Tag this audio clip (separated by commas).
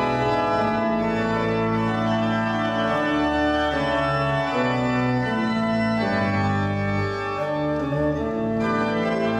Music